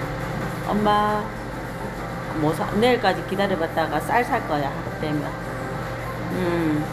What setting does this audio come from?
crowded indoor space